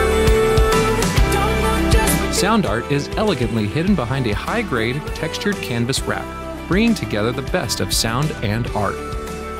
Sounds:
music, speech

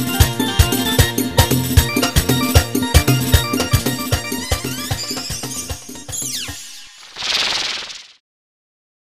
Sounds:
music

